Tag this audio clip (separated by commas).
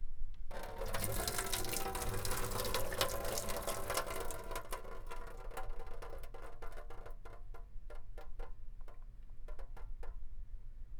Sink (filling or washing), home sounds